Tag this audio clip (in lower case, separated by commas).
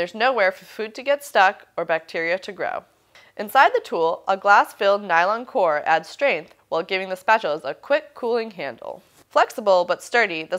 speech